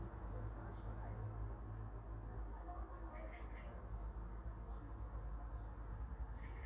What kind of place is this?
park